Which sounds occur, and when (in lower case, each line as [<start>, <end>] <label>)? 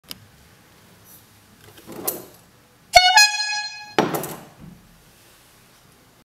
[0.02, 6.25] noise
[0.02, 0.29] generic impact sounds
[1.65, 2.30] generic impact sounds
[2.92, 4.01] foghorn
[4.01, 4.90] generic impact sounds